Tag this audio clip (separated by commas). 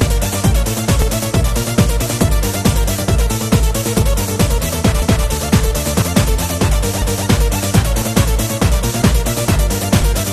Music, Sampler